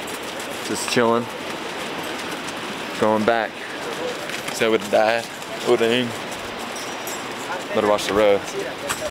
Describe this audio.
A man is talking and a horse is walking